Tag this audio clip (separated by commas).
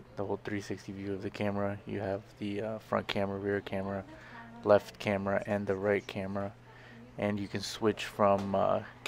Speech